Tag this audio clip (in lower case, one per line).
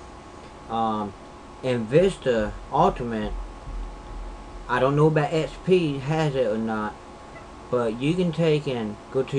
speech